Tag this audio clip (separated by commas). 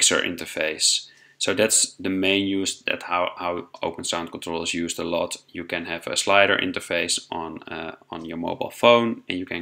Speech